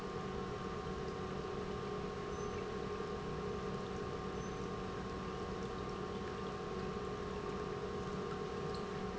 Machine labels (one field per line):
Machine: pump